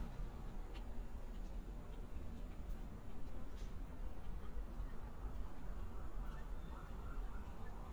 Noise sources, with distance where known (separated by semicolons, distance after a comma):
background noise